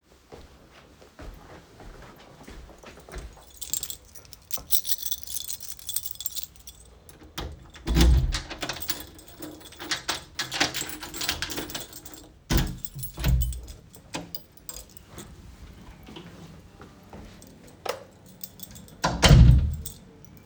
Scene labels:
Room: hallway; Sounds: footsteps, keys, door (more than once), light switch

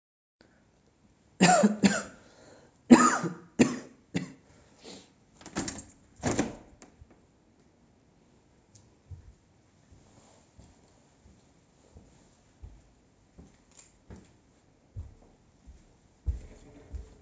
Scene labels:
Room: living room; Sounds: window, footsteps

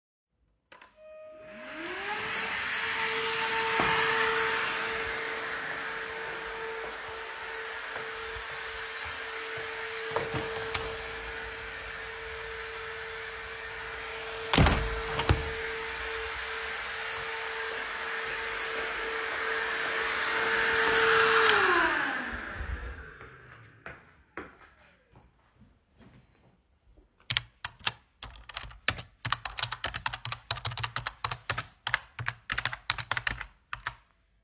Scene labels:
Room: living room; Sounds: vacuum cleaner, window (more than once), footsteps, keyboard typing

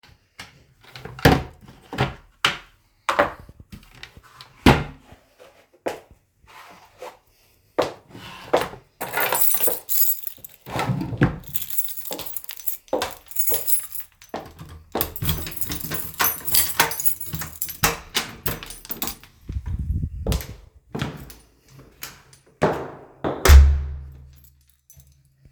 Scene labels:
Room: hallway; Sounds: wardrobe or drawer, footsteps, keys, door (more than once)

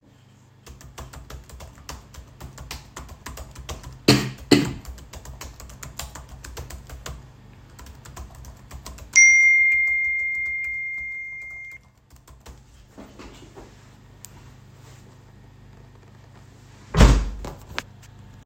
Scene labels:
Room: bedroom; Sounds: keyboard typing, phone ringing, window

